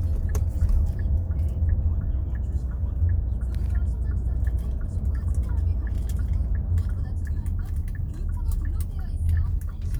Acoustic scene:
car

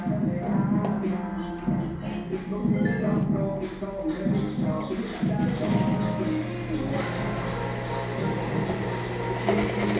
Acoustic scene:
cafe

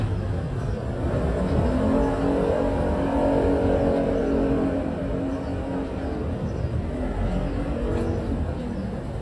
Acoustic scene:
residential area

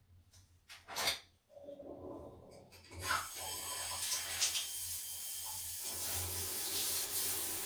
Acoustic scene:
restroom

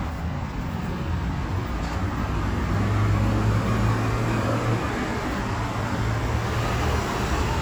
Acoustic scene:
street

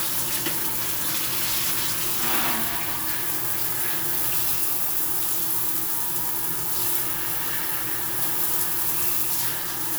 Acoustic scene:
restroom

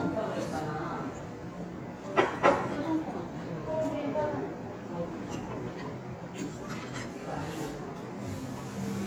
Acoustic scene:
restaurant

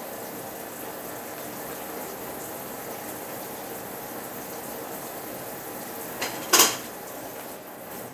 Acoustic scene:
kitchen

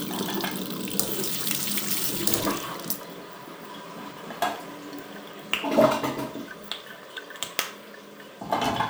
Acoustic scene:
restroom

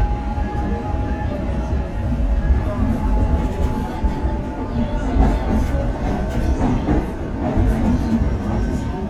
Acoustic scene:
subway train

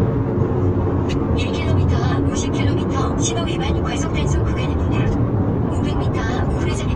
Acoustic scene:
car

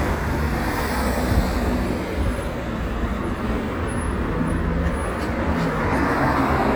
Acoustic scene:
residential area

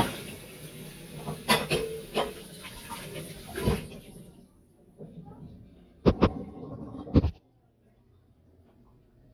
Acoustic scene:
kitchen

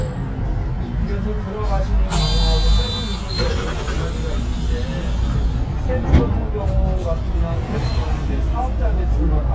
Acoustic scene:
bus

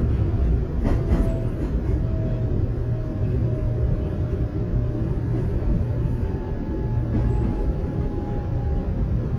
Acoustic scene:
subway train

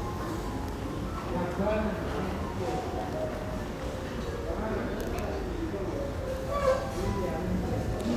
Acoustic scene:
crowded indoor space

